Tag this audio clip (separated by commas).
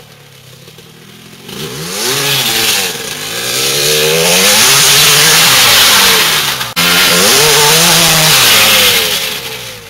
Vehicle, revving, engine accelerating